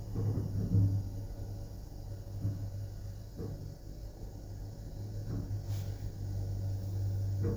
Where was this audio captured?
in an elevator